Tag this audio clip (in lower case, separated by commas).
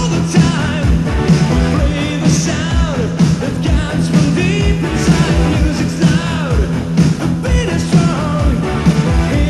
music